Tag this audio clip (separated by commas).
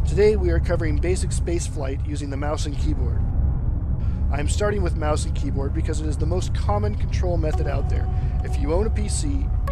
Music, Speech